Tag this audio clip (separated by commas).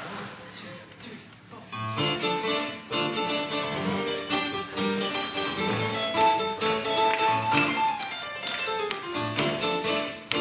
Music